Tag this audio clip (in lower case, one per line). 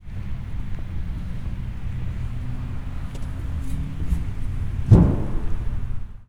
thud